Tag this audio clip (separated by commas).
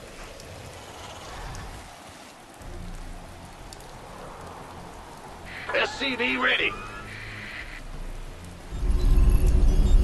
Music, Speech